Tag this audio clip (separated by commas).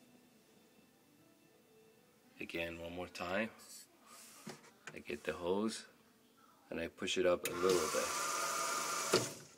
Speech